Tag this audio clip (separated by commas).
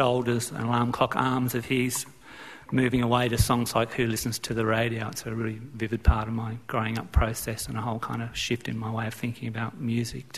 Speech